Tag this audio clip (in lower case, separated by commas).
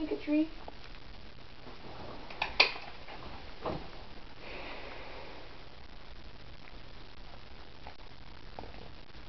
dog, domestic animals, animal